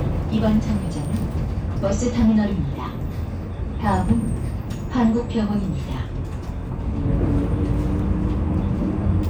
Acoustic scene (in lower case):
bus